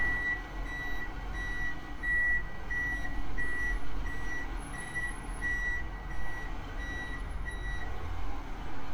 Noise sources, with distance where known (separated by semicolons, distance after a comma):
large-sounding engine; reverse beeper